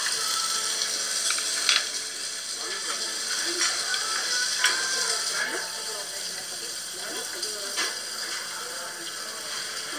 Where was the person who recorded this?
in a restaurant